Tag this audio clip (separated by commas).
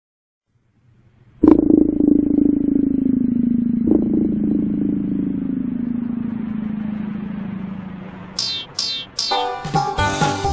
Music, inside a small room